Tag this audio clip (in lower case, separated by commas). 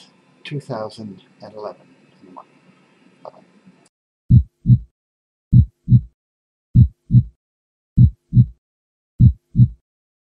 speech